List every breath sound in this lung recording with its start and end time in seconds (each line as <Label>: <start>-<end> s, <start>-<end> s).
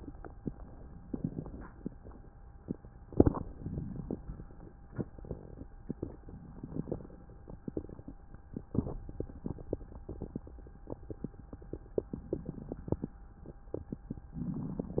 Inhalation: 1.04-1.78 s, 3.48-4.22 s, 6.48-7.21 s, 12.14-12.99 s, 14.37-15.00 s